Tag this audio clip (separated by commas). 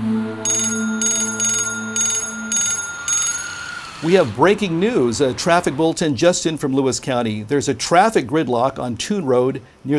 Vehicle, Speech